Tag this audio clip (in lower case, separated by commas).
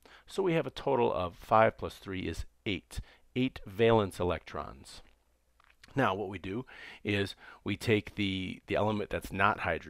speech